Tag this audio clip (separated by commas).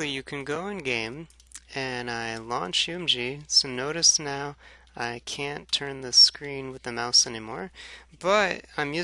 Speech